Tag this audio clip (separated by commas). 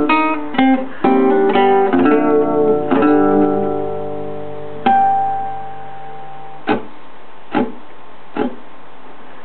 Plucked string instrument, Strum, Guitar, Musical instrument, Music